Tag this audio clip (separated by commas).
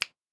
Hands, Finger snapping